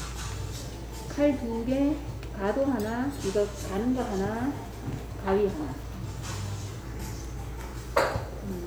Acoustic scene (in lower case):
restaurant